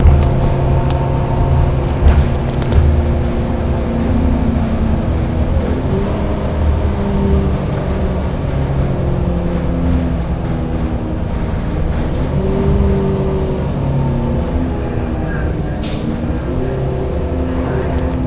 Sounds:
motor vehicle (road), vehicle, bus

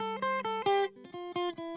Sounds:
music, electric guitar, guitar, plucked string instrument, musical instrument

